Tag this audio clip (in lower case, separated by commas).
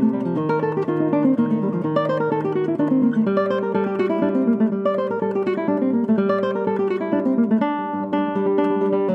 musical instrument, guitar, music